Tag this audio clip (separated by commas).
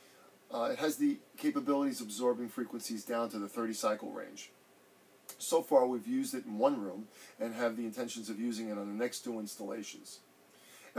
Speech